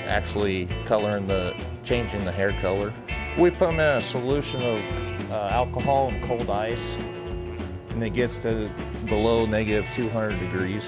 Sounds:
Speech, Music

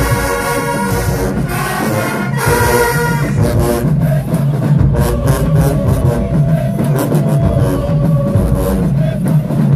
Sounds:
Music

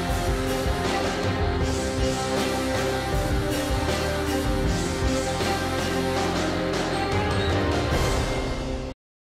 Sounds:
Music

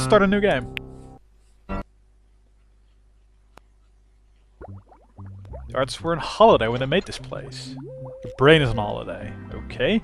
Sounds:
Speech, Music

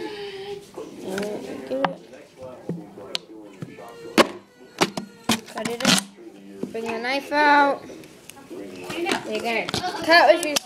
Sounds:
Speech

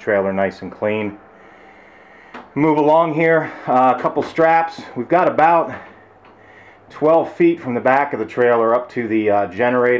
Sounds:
Speech

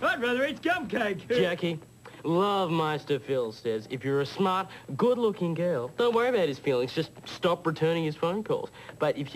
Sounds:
Speech

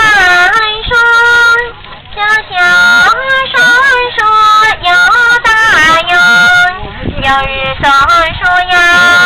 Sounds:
Female singing

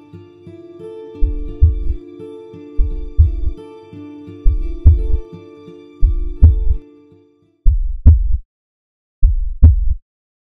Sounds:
Music

